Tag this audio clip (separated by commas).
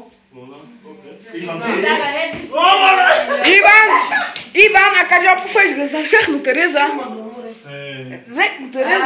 Clapping